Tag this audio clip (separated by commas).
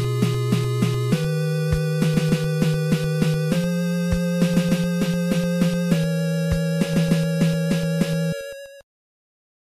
Music